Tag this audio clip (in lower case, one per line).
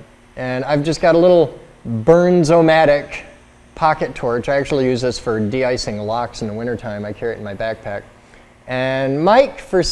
speech